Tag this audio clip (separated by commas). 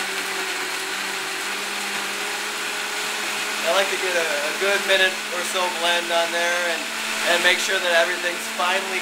Blender